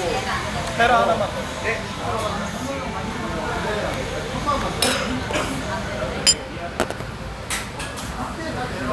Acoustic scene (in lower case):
restaurant